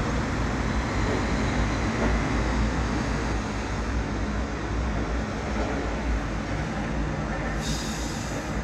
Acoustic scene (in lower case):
residential area